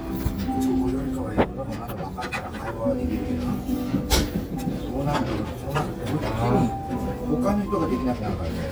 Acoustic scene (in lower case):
restaurant